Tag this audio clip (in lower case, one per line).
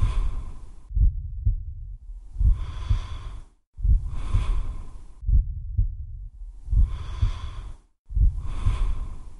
wheeze
breathing